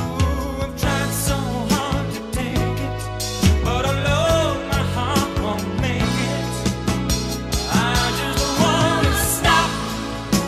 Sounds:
Soul music, Music

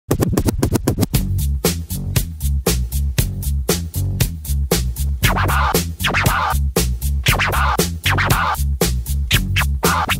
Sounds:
disc scratching

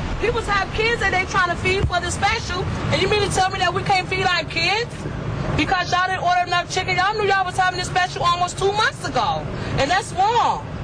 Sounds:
Speech

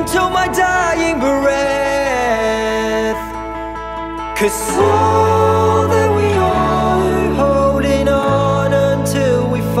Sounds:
Music, Tender music

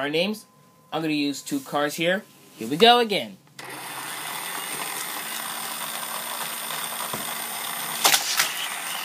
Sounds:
Speech

